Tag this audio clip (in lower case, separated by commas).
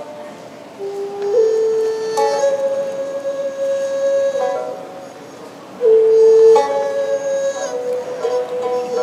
traditional music, middle eastern music, music